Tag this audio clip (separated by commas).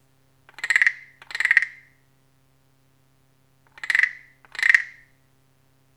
Musical instrument, Percussion, Music, Animal, Wood, Wild animals, Frog